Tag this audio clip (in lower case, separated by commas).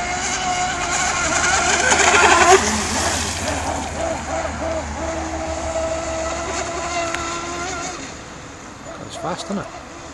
speech